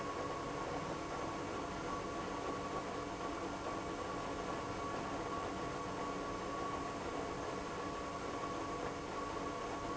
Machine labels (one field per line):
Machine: pump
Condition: abnormal